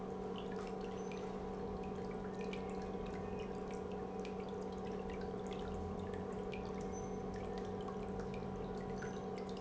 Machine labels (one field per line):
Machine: pump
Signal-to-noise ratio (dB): 6 dB